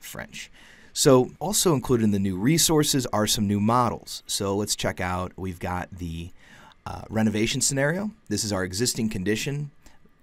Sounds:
Speech

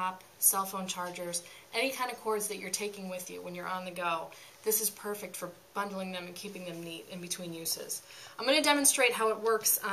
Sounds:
Speech

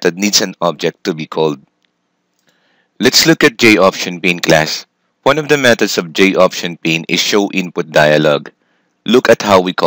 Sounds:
Speech

